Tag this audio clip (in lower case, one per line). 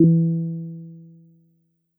musical instrument
keyboard (musical)
music
piano